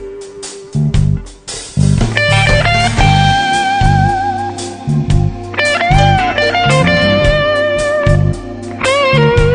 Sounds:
Music

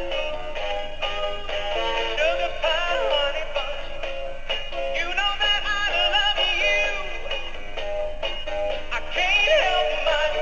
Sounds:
Male singing, Music

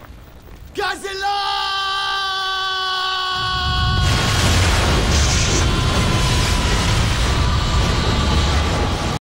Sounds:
Bellow, Whoop, Speech

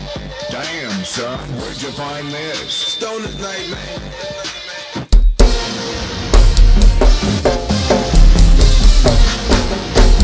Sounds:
Speech, Drum, Drum kit, Drum roll, Rimshot, Music

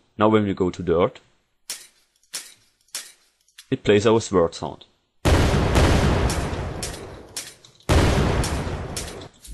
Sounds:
Fusillade, Speech

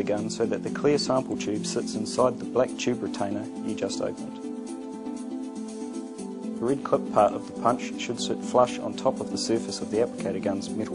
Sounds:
Speech, Music

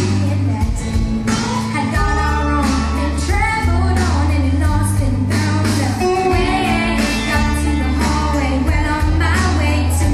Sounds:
Singing

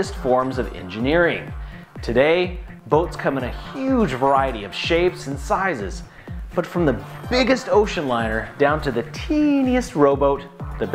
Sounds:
Speech, Music

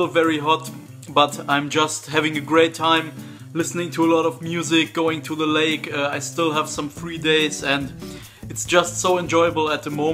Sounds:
Music, Speech

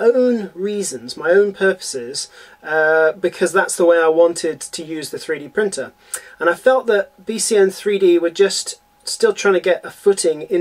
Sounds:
Speech

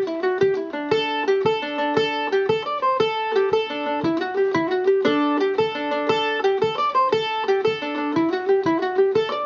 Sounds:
Mandolin, Music

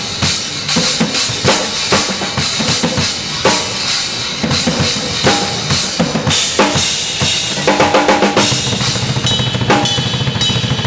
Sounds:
Music

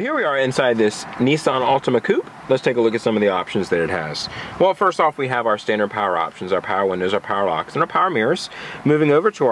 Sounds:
Speech

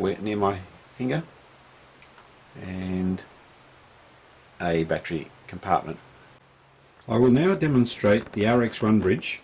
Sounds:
Speech

